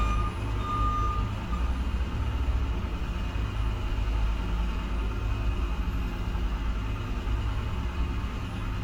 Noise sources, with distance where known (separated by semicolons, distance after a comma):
reverse beeper